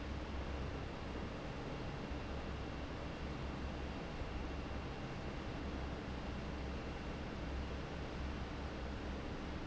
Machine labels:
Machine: fan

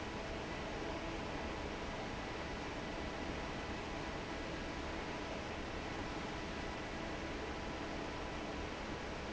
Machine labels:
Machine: fan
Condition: normal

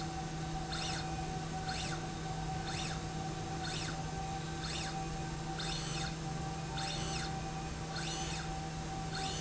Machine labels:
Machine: slide rail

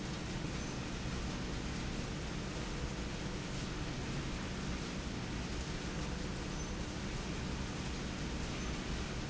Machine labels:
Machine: slide rail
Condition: normal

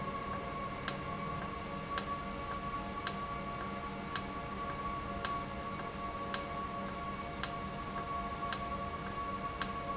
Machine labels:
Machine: valve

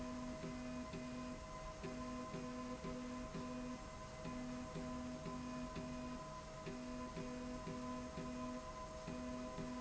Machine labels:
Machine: slide rail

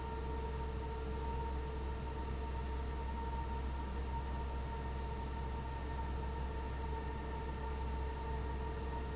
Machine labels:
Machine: fan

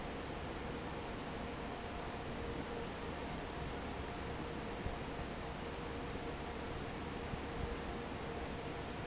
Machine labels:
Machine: fan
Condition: normal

